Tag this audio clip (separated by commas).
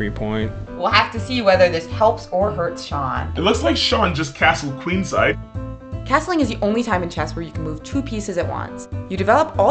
Conversation